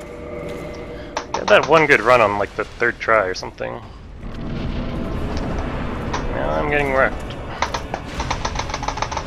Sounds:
speech, music, drum kit, drum, musical instrument

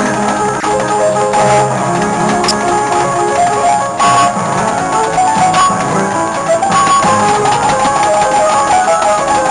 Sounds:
guitar, music, musical instrument

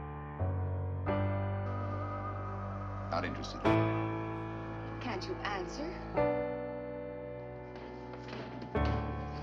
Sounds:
speech, music

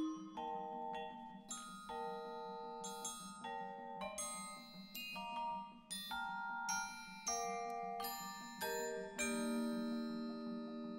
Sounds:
music, musical instrument, marimba

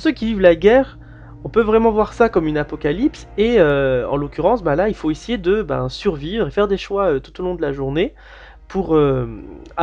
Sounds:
music, speech

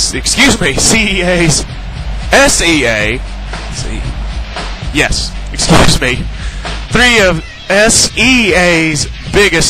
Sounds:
speech, music

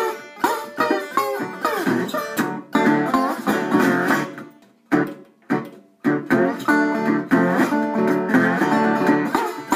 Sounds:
playing steel guitar

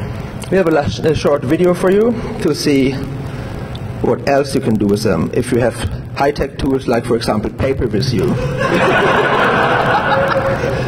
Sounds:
laughter, speech

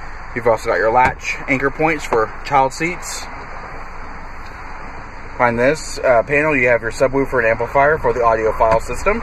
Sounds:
vehicle, speech

